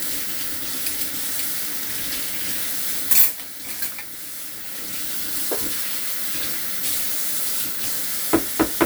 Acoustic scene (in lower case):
kitchen